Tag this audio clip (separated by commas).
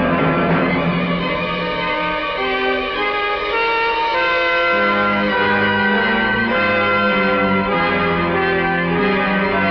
Scary music, Music